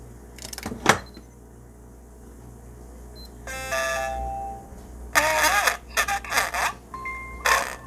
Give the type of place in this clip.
kitchen